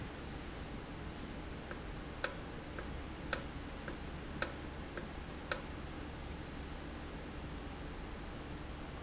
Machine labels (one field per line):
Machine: valve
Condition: normal